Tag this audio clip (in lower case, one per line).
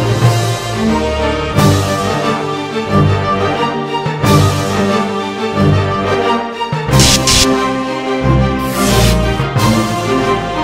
music